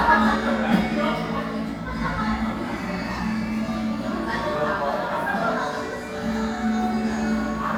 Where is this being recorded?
in a crowded indoor space